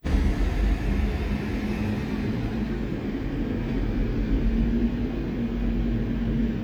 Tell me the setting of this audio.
street